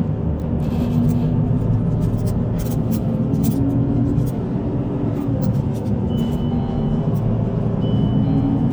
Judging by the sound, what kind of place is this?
bus